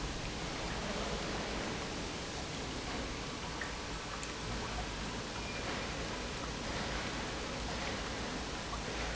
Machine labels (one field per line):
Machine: pump